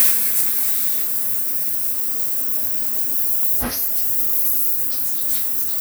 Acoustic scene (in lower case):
restroom